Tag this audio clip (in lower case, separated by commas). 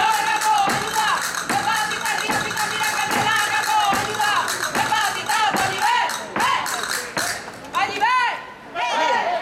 music